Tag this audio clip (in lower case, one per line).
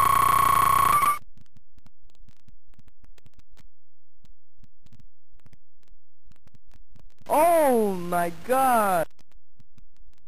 speech